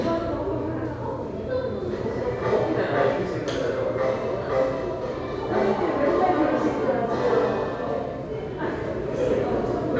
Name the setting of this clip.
subway station